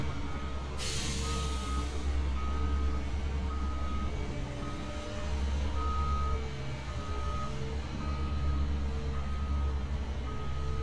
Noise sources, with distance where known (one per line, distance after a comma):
large-sounding engine
reverse beeper